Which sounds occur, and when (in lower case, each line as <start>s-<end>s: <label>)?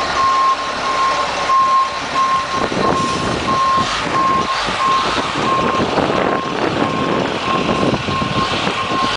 0.0s-9.1s: truck
4.6s-9.1s: wind noise (microphone)
8.7s-9.1s: reversing beeps